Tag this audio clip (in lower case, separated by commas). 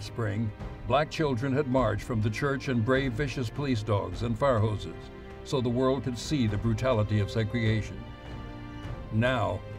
speech, music, male speech